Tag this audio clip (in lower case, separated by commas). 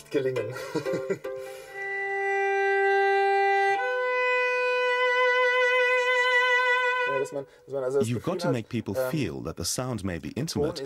cello, bowed string instrument